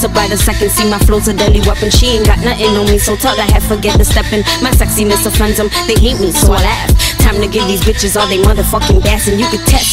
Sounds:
music, music of africa

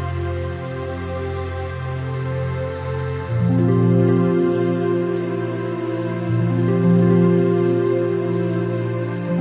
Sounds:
background music, music, soundtrack music

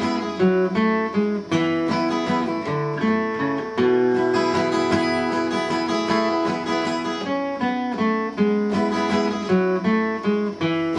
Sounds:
acoustic guitar, music, plucked string instrument, guitar, strum, musical instrument

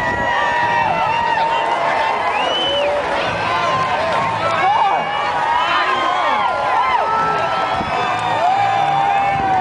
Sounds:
speech

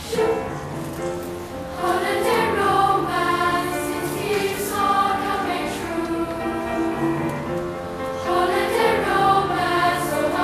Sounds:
choir, music

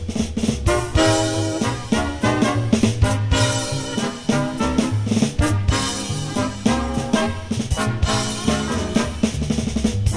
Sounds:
swing music, drum kit, drum, musical instrument, percussion, music

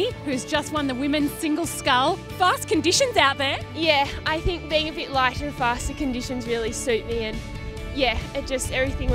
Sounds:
speech, music

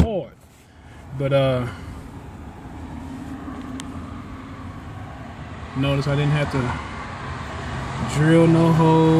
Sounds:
speech

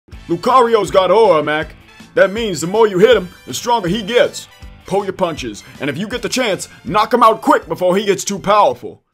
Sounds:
speech, music

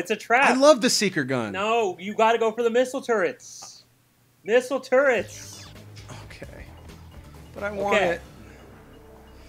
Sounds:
speech

